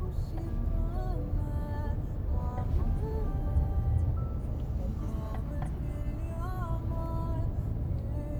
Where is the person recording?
in a car